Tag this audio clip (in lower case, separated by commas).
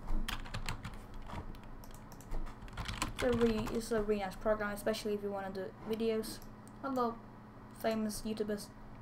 speech